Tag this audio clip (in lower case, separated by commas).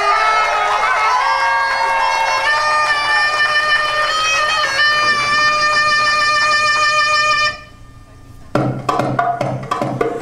music, inside a public space